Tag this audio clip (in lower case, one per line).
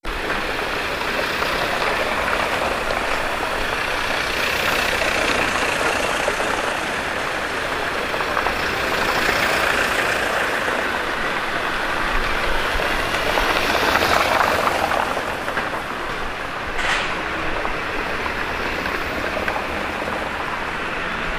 traffic noise
motor vehicle (road)
vehicle